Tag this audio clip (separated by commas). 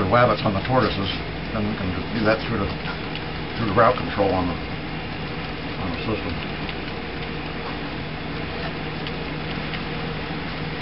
Speech, Vehicle